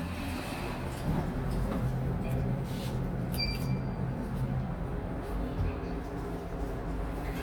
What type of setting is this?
elevator